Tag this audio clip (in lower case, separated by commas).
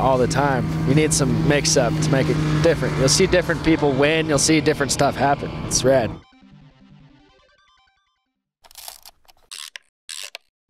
speech, music